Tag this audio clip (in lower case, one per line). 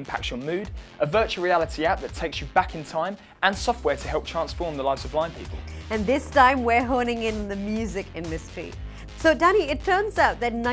speech
music